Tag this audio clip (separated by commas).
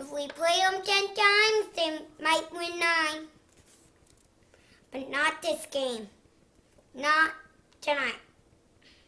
Speech, Narration, kid speaking